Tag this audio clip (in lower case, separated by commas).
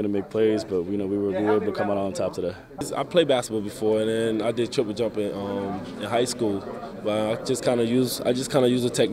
speech